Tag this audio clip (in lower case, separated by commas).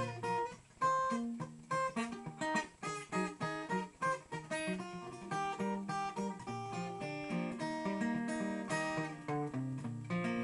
music